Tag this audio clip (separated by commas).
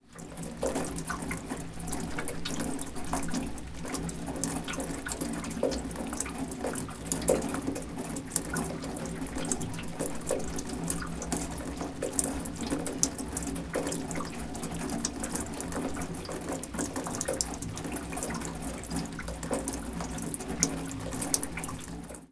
Rain, Water